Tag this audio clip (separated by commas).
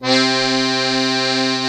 Musical instrument, Music, Accordion